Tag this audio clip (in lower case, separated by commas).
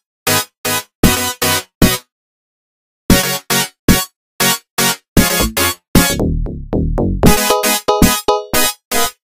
tender music, music